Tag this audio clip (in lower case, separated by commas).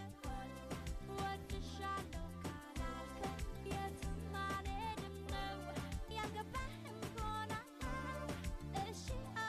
music